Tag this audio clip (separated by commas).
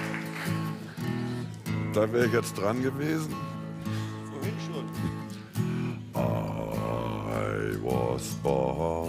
Speech, Music